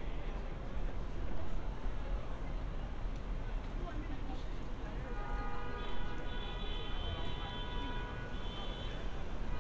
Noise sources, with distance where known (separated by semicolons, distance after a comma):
car horn, far